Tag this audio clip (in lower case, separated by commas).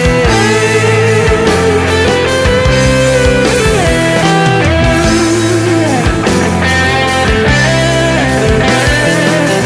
music, progressive rock